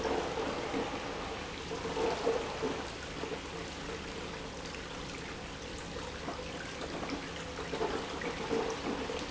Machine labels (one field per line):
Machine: pump